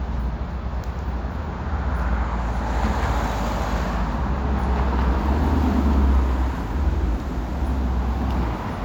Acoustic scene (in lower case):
street